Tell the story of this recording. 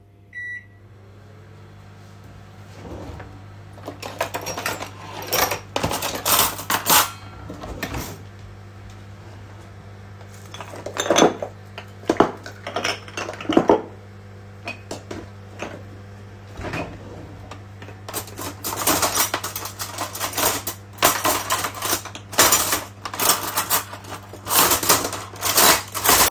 First, I started the microwave. While it was working in the background, I opened and closed drawers looking for cutlery and dishes.